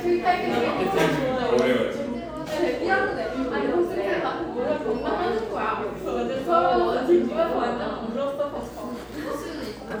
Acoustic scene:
cafe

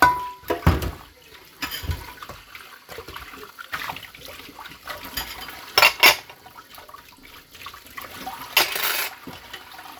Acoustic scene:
kitchen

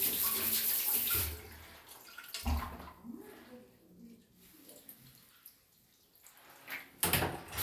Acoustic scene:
restroom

